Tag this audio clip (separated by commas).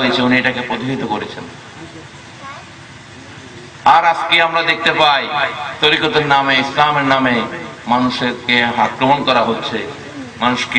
Speech, Male speech, Narration